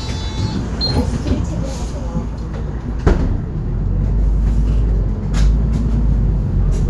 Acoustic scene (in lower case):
bus